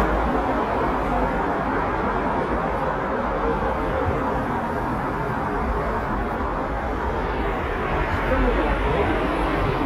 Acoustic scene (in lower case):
street